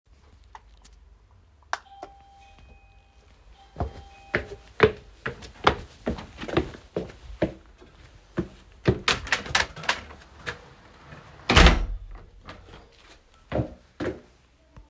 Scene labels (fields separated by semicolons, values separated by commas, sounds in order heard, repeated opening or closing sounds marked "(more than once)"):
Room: hallway; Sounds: bell ringing, footsteps, door